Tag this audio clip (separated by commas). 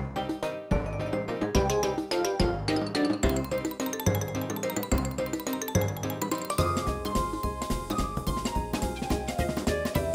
Music